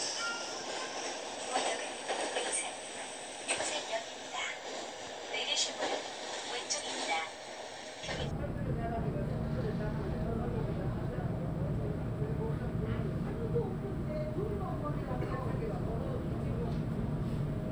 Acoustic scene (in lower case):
subway train